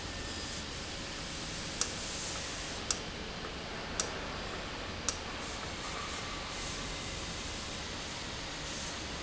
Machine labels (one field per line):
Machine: valve